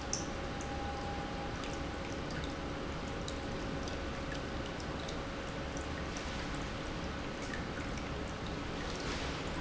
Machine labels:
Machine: pump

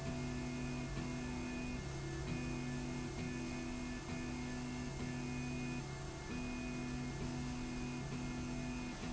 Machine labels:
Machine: slide rail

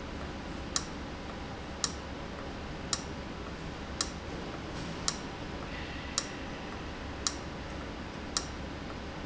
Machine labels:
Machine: valve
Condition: abnormal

